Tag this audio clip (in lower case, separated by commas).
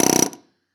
tools